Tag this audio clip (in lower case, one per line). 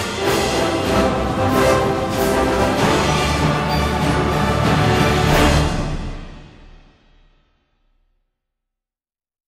background music
music